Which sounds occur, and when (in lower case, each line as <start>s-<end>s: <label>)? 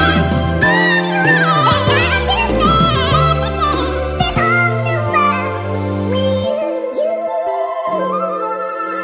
0.0s-9.0s: music
6.9s-9.0s: synthetic singing